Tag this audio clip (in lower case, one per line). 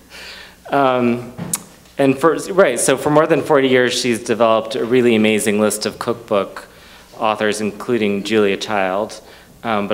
speech